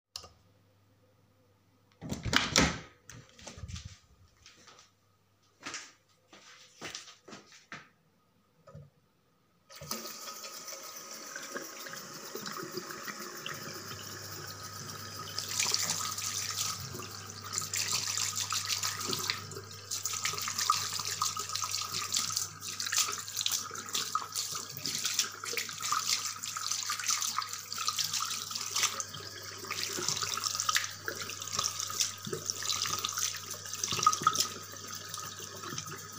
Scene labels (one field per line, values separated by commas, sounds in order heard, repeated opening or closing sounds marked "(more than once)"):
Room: lavatory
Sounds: light switch, door, footsteps, running water